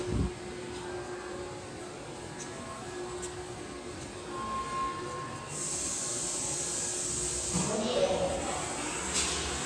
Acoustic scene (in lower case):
subway station